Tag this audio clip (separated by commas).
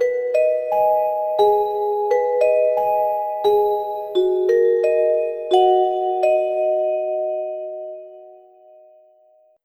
Musical instrument, Music, Percussion, Mallet percussion